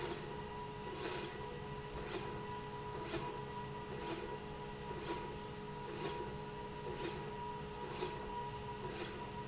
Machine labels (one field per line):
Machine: slide rail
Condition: normal